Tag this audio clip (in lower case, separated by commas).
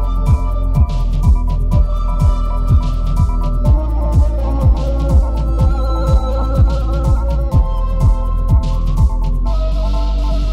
music